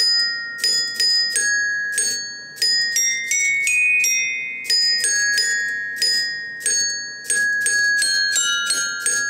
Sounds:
Music, Musical instrument, xylophone

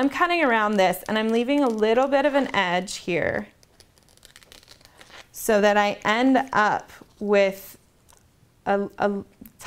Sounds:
Scissors, Speech

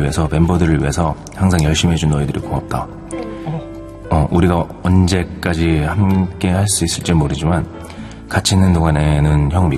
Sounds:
Speech, Music

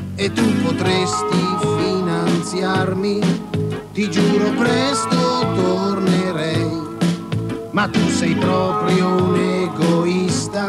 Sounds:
Music

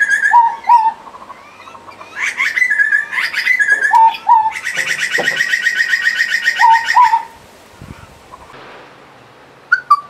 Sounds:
bird song, Bird

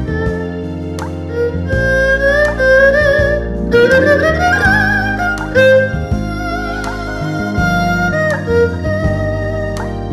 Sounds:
playing erhu

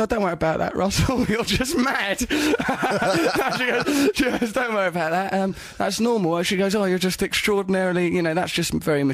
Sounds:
Speech

